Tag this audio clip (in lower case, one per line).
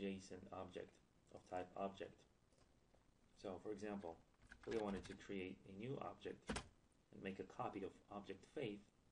speech